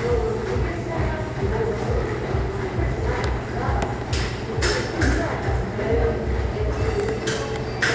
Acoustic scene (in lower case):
crowded indoor space